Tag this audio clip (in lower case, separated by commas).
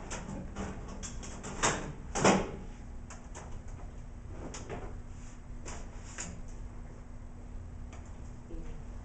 inside a small room